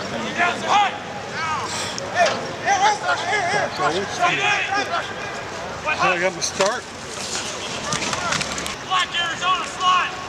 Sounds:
speech

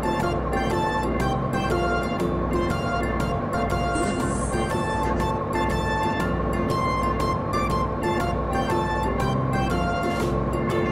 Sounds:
ice cream truck

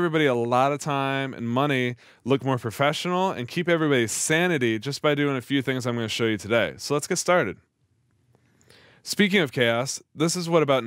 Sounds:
speech

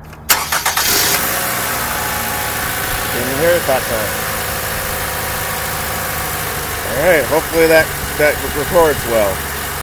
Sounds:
speech

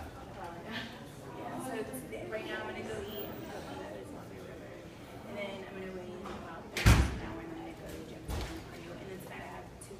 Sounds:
speech
inside a large room or hall

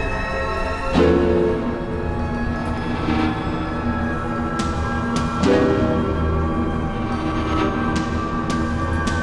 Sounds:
music

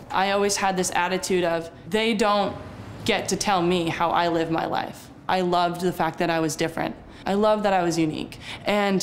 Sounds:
speech

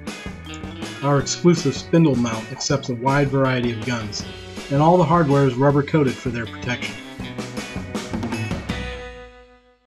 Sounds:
speech
music

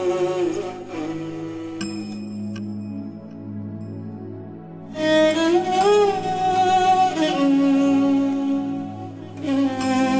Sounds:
bowed string instrument

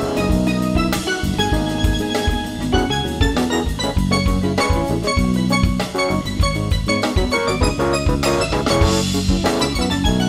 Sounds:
music
musical instrument
marimba
drum
drum kit

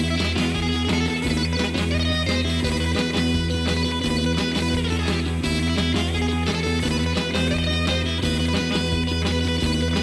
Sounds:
musical instrument
electric guitar
music
guitar
plucked string instrument
playing electric guitar

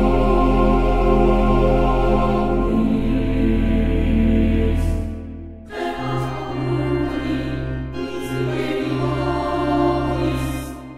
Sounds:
music

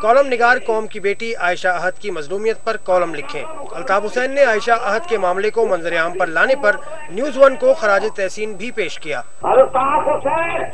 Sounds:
narration
male speech
speech

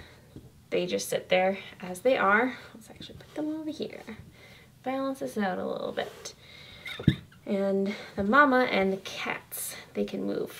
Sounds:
speech

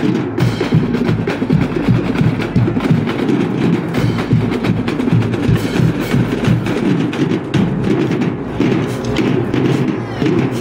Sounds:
music
musical instrument
percussion
thud
drum

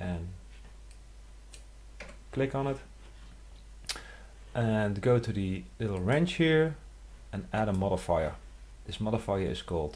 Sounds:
speech

